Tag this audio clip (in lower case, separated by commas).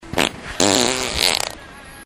fart